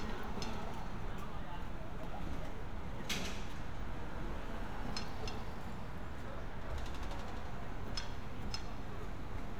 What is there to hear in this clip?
background noise